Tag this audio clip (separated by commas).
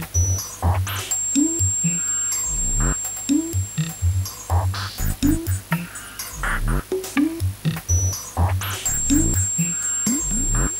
Electronic music, Electronica, Music